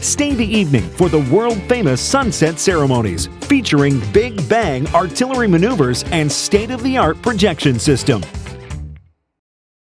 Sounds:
speech
music

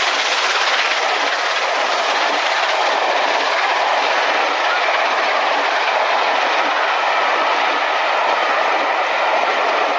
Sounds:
train whistling

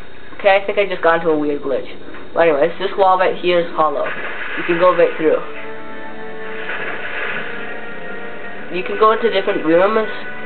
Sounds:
music
speech

